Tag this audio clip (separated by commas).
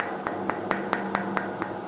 Mechanisms